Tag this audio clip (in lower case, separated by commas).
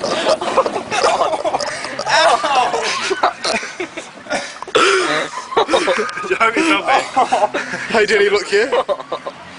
speech